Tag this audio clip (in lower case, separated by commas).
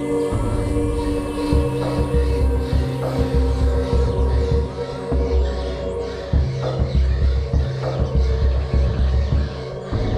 music, outside, rural or natural, animal